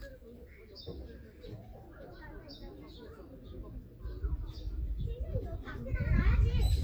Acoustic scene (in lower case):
park